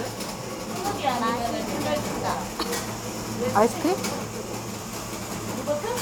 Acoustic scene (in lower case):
cafe